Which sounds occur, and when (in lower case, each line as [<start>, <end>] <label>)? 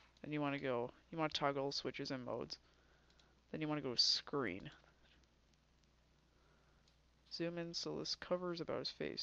[0.00, 9.22] background noise
[0.09, 0.23] clicking
[0.19, 0.90] male speech
[0.45, 0.67] clicking
[1.13, 2.59] male speech
[3.06, 3.29] clicking
[3.51, 4.87] male speech
[4.55, 4.77] clicking
[6.81, 7.04] clicking
[7.25, 9.22] male speech